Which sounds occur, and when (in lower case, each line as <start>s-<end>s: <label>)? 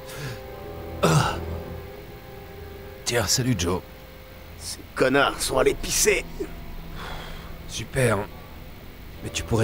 0.0s-0.4s: breathing
0.0s-9.6s: music
1.0s-1.4s: man speaking
3.0s-3.8s: man speaking
4.5s-4.7s: man speaking
4.9s-6.2s: man speaking
6.9s-7.6s: breathing
7.6s-8.3s: man speaking
9.2s-9.6s: man speaking